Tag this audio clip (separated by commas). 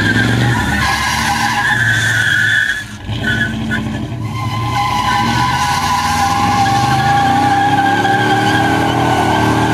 Vehicle, Car, Skidding